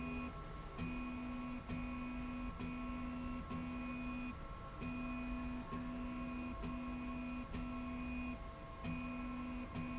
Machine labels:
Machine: slide rail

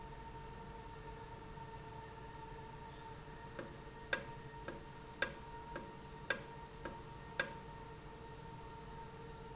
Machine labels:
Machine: valve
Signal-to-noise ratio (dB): 6 dB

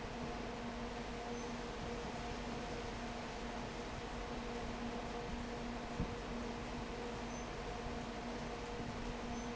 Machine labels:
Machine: fan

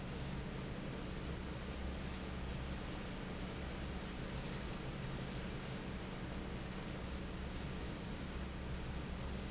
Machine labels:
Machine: fan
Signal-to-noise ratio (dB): 0 dB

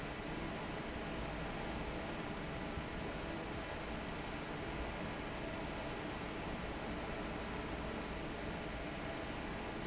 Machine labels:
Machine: fan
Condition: normal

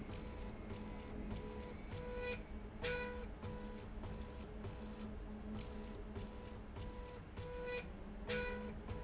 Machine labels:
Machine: slide rail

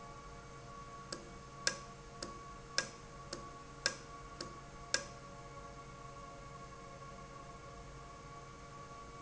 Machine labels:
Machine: valve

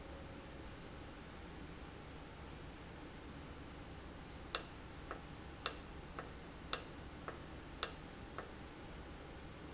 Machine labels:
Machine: valve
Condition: normal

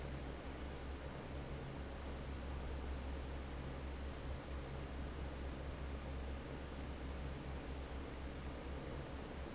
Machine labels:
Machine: fan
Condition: normal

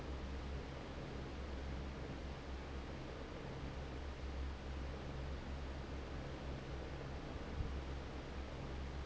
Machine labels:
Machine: fan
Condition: normal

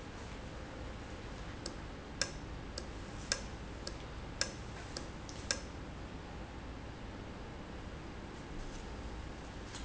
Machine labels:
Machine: valve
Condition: normal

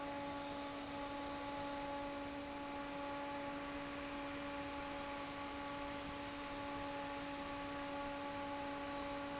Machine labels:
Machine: fan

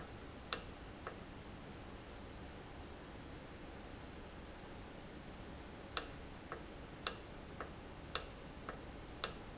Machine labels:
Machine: valve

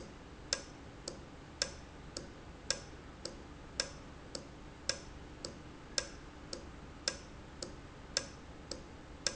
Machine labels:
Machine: valve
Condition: normal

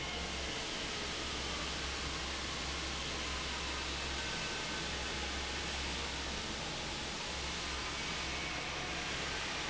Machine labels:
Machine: fan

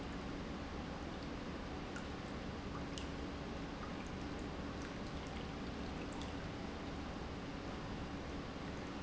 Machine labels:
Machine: pump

